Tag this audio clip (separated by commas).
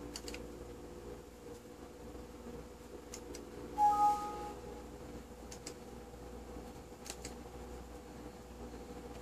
inside a small room